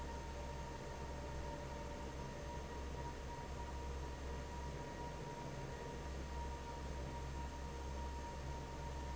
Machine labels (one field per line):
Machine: fan